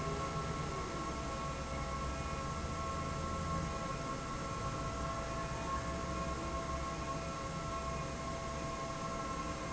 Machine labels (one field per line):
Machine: fan